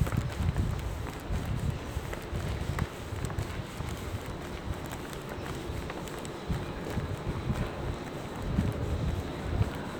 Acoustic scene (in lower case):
subway station